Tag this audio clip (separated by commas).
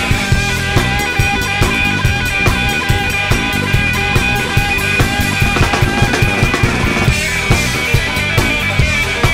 Music, Blues, Psychedelic rock